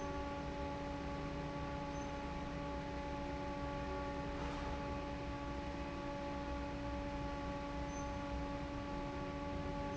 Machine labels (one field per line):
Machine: fan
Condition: normal